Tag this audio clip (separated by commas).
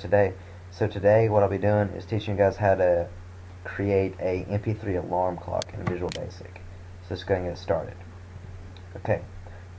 Speech